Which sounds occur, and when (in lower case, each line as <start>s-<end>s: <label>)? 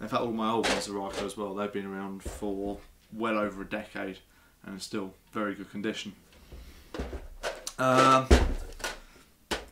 0.0s-2.7s: male speech
0.0s-9.7s: mechanisms
0.6s-0.8s: generic impact sounds
1.0s-1.2s: generic impact sounds
2.2s-2.4s: generic impact sounds
2.6s-2.8s: surface contact
2.9s-3.1s: generic impact sounds
3.1s-4.2s: male speech
4.3s-4.5s: breathing
4.6s-5.1s: male speech
5.3s-5.4s: tick
5.3s-6.0s: male speech
6.2s-6.4s: tick
6.3s-6.9s: surface contact
6.4s-6.7s: generic impact sounds
6.9s-7.2s: generic impact sounds
7.4s-7.7s: generic impact sounds
7.7s-8.3s: male speech
7.9s-9.0s: generic impact sounds
9.0s-9.3s: surface contact
9.5s-9.6s: generic impact sounds